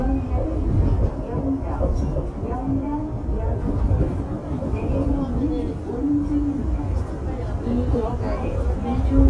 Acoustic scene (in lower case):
subway train